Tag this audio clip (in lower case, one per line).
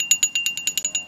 glass